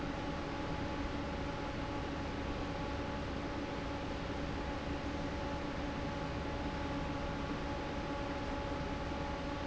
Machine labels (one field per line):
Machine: fan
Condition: normal